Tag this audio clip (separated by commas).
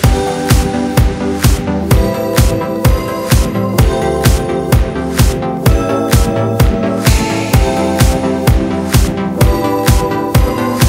Soul music, Music